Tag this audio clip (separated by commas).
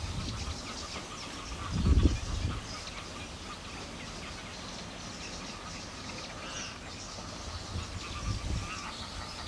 Bird